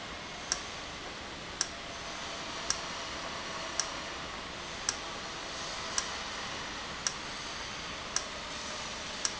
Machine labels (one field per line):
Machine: valve